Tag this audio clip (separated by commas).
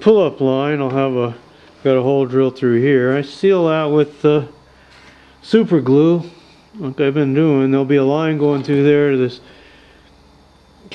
Speech